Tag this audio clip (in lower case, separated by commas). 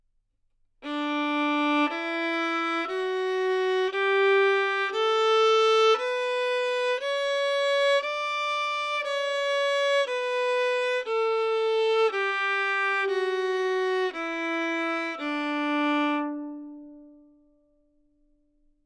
musical instrument, bowed string instrument, music